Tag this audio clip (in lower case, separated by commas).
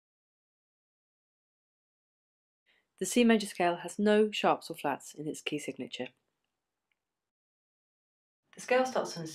speech